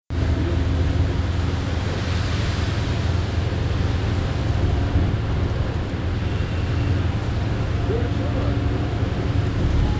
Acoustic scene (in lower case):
bus